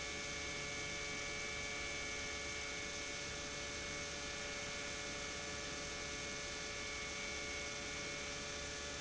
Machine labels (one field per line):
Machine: pump